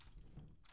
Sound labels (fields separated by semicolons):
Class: door; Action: opening; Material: wooden